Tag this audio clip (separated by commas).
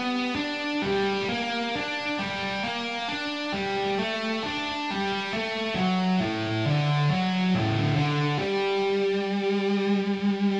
tapping guitar